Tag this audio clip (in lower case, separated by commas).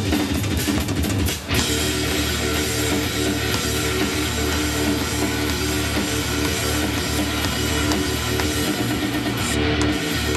electric guitar, plucked string instrument, music, musical instrument, strum, guitar